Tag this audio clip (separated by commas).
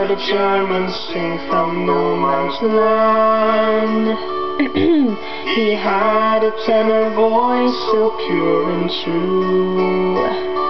Female singing, Music, Male singing